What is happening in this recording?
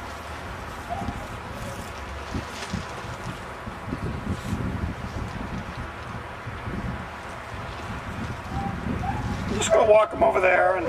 Dogs are barking in the distance and a man speaks